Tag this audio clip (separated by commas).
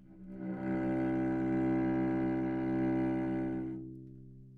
Bowed string instrument, Music, Musical instrument